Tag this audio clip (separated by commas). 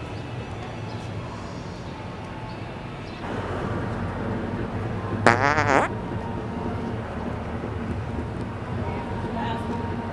people farting